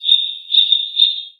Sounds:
Wild animals, Bird, Bird vocalization, Animal

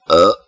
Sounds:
Burping

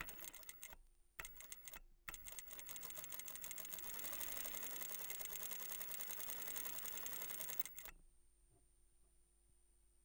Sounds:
Mechanisms

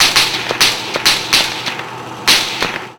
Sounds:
Explosion, Gunshot

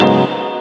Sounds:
Musical instrument, Keyboard (musical), Music

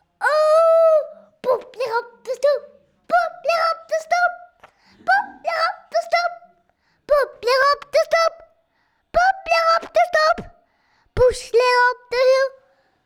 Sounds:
Human voice, Singing

